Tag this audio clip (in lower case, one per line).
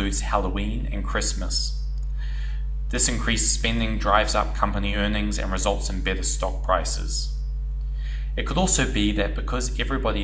speech